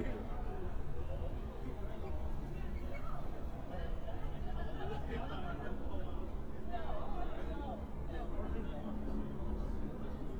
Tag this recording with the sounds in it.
person or small group talking